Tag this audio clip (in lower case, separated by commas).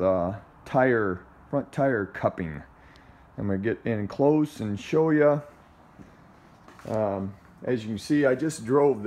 speech